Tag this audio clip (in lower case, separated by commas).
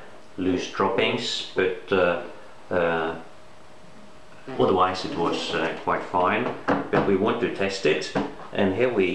inside a small room, speech